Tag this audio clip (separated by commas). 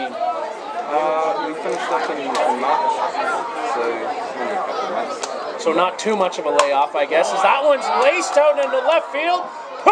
Speech